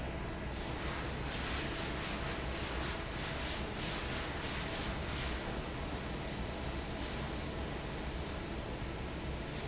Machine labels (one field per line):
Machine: fan